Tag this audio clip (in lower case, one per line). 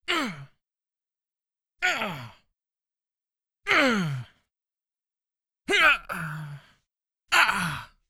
human voice